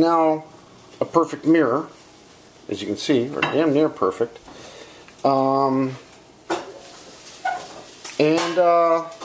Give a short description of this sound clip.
A man speaking with clanking in the background